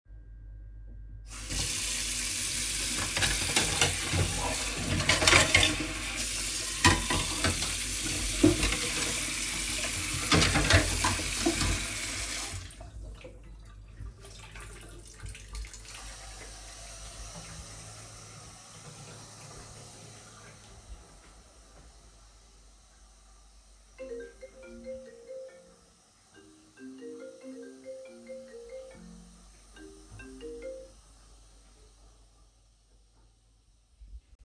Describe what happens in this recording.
I immitated washing the dishes then left the water running and went to living room where a phone rang